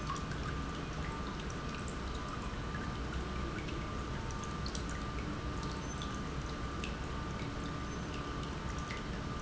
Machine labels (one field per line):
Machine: pump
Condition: normal